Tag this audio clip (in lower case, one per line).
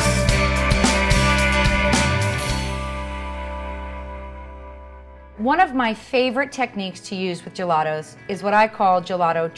speech
music